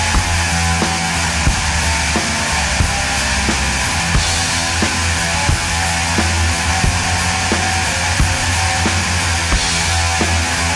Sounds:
music

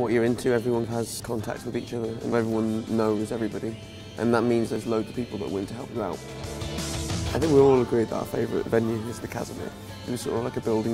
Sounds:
exciting music, speech, music

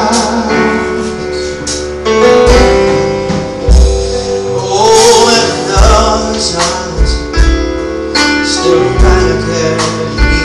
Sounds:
inside a large room or hall, music

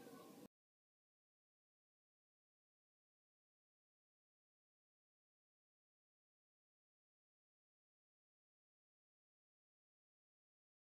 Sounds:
silence

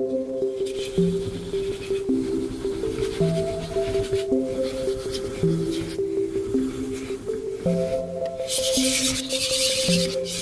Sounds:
sharpen knife

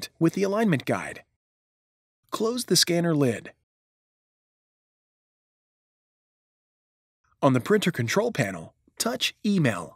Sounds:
speech

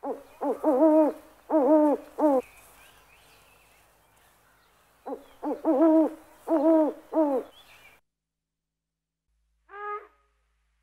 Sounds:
owl hooting

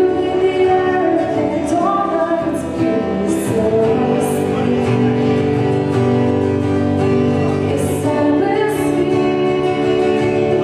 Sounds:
female singing, music

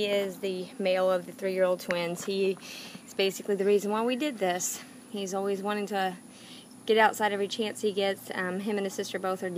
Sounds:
speech

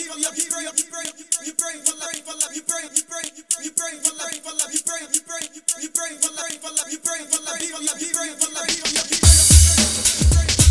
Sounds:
music

